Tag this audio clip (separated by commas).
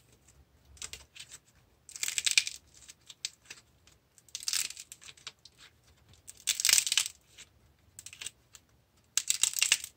ice cracking